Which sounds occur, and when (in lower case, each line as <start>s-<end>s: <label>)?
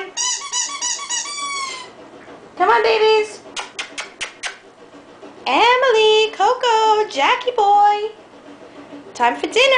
0.0s-1.9s: squeak
0.0s-9.7s: mechanisms
2.2s-2.3s: tick
2.5s-3.4s: woman speaking
3.5s-4.6s: human sounds
5.4s-8.1s: woman speaking
8.7s-9.1s: breathing
9.1s-9.7s: woman speaking